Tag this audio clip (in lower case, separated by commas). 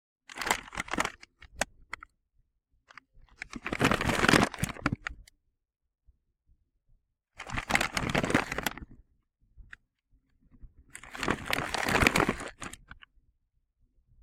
crumpling